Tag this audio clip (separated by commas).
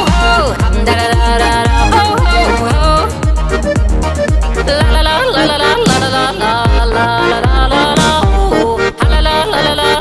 yodelling